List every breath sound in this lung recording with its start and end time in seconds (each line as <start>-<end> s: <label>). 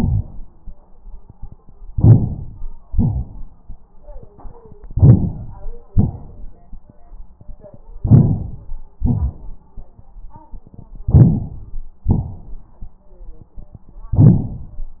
1.90-2.89 s: inhalation
2.92-3.91 s: exhalation
2.92-3.91 s: rhonchi
4.86-5.84 s: inhalation
4.86-5.84 s: rhonchi
5.90-6.89 s: exhalation
5.90-6.89 s: rhonchi
8.03-9.01 s: inhalation
9.01-9.72 s: exhalation
9.01-9.72 s: rhonchi
11.12-11.82 s: inhalation
11.12-11.82 s: rhonchi
12.09-12.79 s: exhalation
12.09-12.79 s: rhonchi